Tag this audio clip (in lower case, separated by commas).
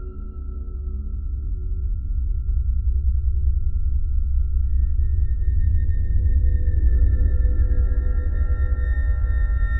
music